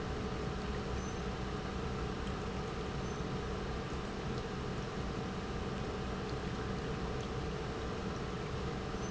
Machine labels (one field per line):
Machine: pump